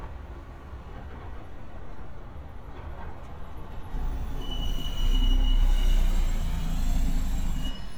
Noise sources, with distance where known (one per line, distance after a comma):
engine of unclear size, near